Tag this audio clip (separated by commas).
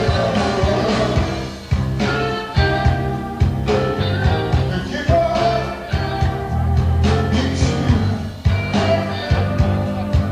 Musical instrument, Music